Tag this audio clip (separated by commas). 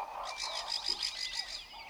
Animal, Wild animals, Bird